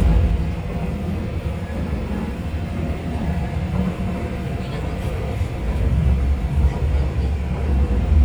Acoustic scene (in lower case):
subway train